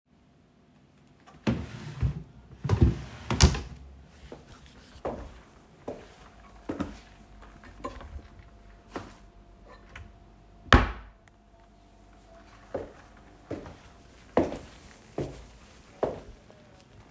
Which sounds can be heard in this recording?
wardrobe or drawer, footsteps